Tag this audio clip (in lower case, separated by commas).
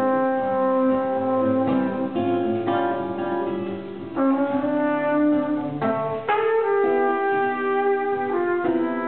jazz, trumpet, plucked string instrument, guitar, music, playing trumpet, musical instrument